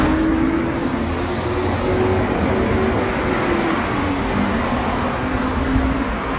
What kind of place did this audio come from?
street